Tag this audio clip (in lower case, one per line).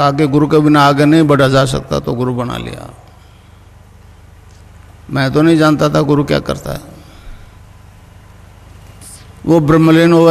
speech